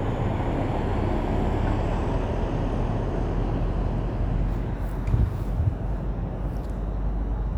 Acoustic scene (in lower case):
street